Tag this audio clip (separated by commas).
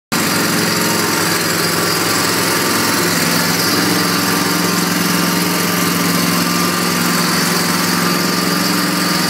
lawn mowing, Lawn mower